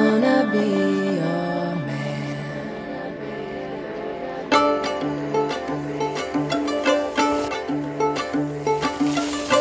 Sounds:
Music

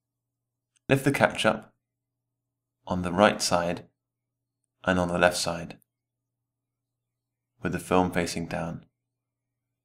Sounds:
Speech

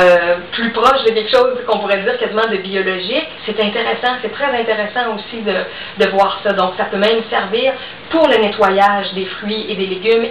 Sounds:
Speech

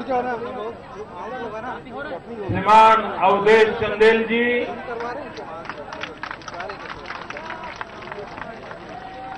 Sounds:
Conversation, Male speech, Speech

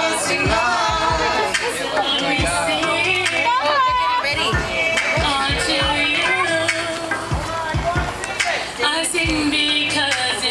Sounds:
Male singing, Speech, Music, Female singing, Choir

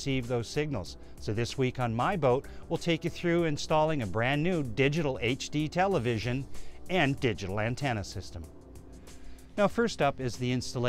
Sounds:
Speech, Music

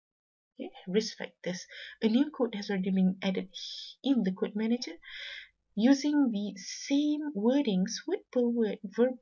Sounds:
Narration

